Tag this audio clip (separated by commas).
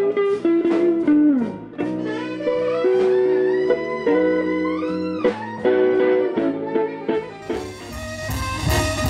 Speech, Blues, Musical instrument, Music